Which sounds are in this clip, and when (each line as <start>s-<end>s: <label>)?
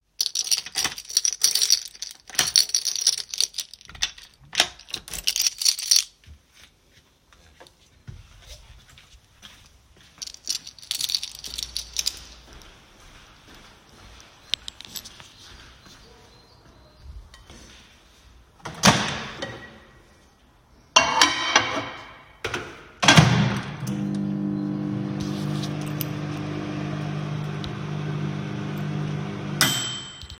0.1s-6.8s: keys
6.1s-18.4s: footsteps
10.2s-12.6s: keys
14.4s-15.3s: keys
18.6s-30.2s: microwave
20.7s-22.1s: cutlery and dishes